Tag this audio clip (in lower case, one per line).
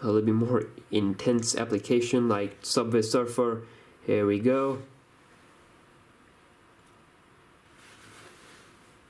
speech